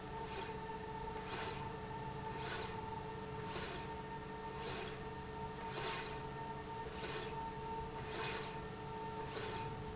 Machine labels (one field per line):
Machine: slide rail